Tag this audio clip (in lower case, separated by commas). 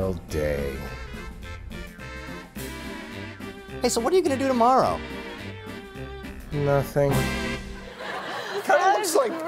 music, man speaking, speech